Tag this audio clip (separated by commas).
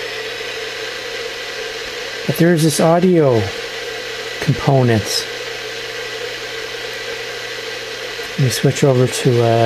inside a small room, Speech, Radio